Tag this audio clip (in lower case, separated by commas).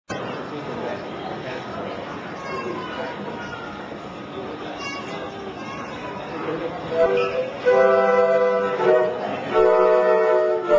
speech, flute, music, inside a large room or hall